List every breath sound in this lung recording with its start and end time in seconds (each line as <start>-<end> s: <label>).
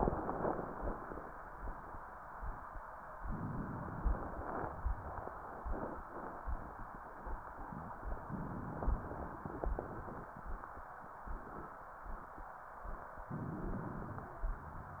3.16-4.39 s: inhalation
8.26-9.49 s: inhalation
9.46-10.89 s: exhalation
13.32-14.42 s: inhalation